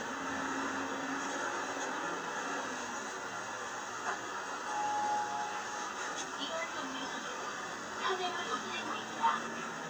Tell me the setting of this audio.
bus